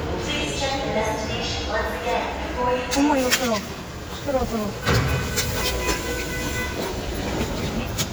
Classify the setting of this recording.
subway station